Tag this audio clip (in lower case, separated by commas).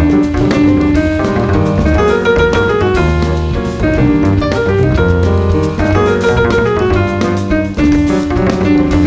blues, music